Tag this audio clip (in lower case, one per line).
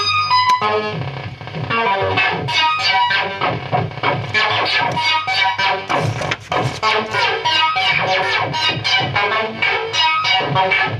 music
sampler